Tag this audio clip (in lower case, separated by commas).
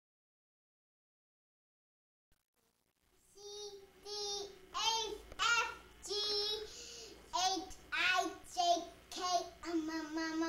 singing, inside a small room, silence